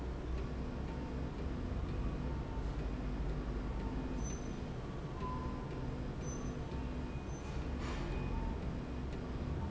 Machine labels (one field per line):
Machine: slide rail